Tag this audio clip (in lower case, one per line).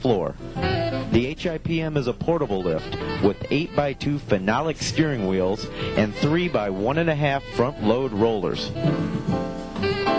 music
speech